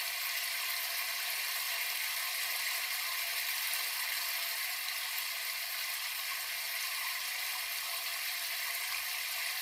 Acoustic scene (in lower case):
restroom